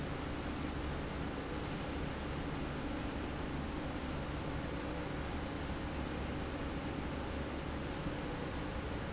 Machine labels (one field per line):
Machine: slide rail